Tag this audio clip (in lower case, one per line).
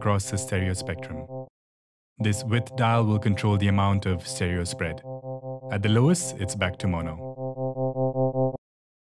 electronic tuner
synthesizer
speech